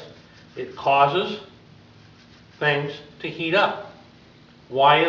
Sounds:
speech

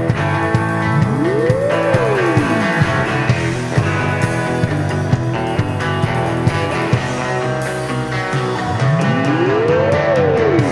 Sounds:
music
soundtrack music
rhythm and blues
exciting music
dance music
blues

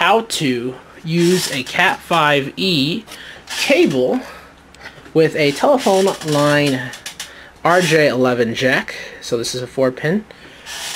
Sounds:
speech

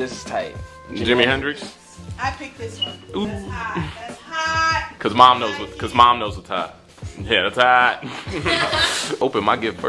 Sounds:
speech
music

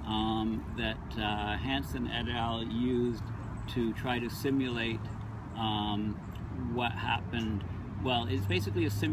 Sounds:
gurgling
speech

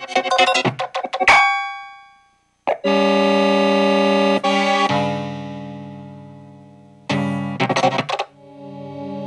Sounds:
ambient music
music

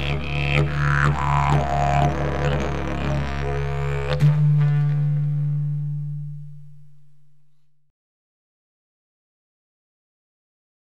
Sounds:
musical instrument
didgeridoo
music

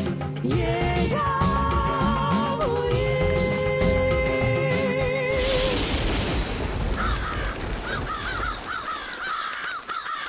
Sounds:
music

